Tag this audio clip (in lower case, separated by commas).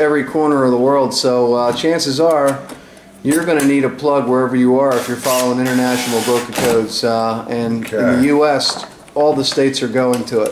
speech